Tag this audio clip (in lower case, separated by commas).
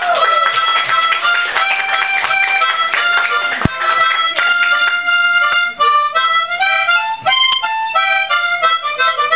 playing harmonica